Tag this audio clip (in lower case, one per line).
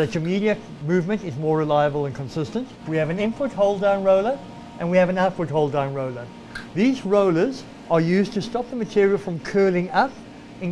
speech